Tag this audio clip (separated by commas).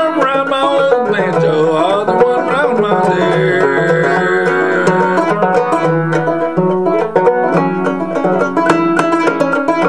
Musical instrument, playing banjo, Music, Banjo, Plucked string instrument